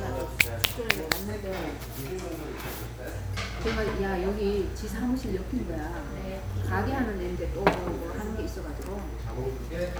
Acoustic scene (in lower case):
restaurant